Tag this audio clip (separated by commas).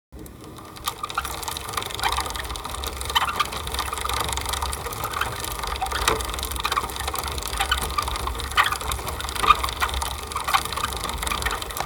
Vehicle, Bicycle